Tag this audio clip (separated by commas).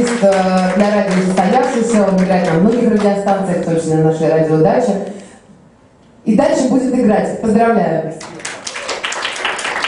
Speech